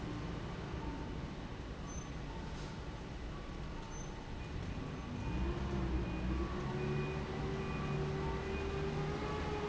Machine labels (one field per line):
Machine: fan